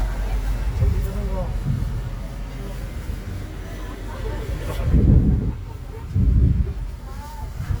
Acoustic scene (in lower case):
residential area